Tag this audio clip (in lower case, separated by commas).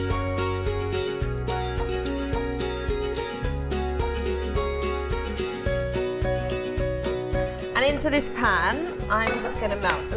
music, speech